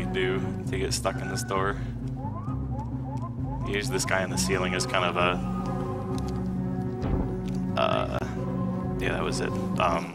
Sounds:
speech, music

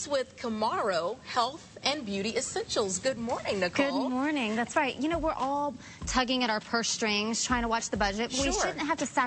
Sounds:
speech

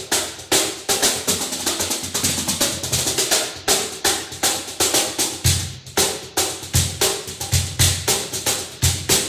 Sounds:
music, musical instrument, percussion

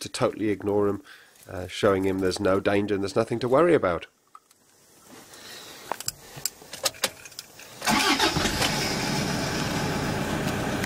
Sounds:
car, speech, vehicle

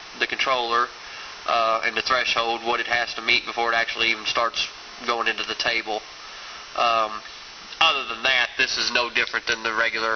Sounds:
speech

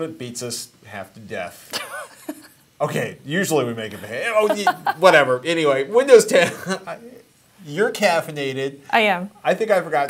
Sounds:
speech

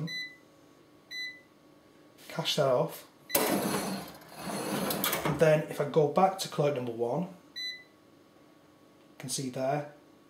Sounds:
speech

